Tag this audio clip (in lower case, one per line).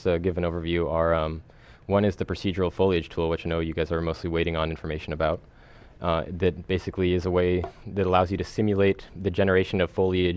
speech